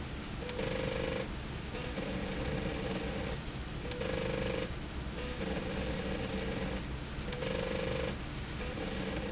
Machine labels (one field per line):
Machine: slide rail